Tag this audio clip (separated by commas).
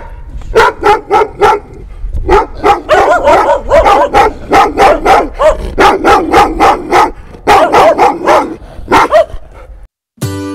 cat growling